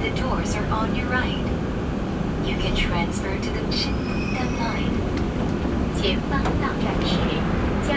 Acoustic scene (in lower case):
subway train